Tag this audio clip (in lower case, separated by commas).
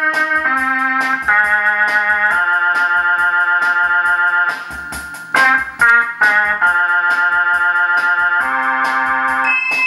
musical instrument, music, keyboard (musical)